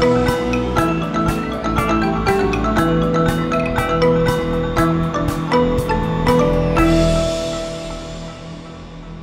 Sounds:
music

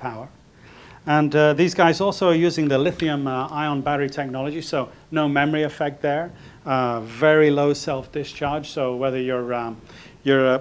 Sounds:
speech

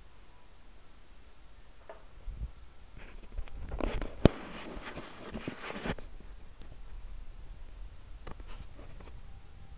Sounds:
inside a small room

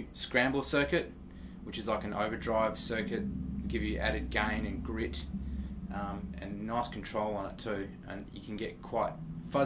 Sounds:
speech

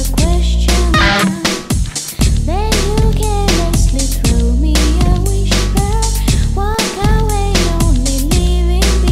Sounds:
music

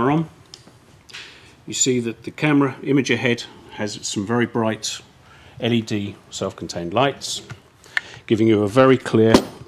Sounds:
tools

